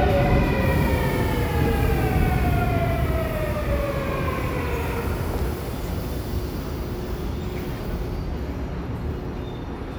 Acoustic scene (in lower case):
subway station